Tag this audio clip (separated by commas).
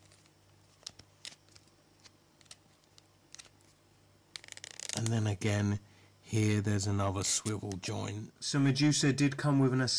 Speech